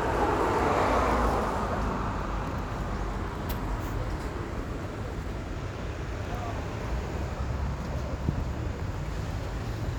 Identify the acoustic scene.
residential area